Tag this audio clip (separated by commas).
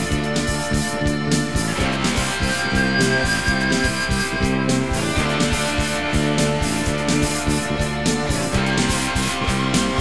Music, Progressive rock